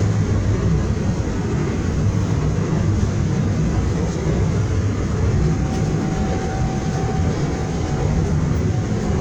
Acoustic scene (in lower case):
subway train